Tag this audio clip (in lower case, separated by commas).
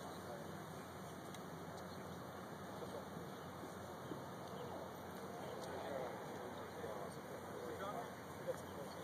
speech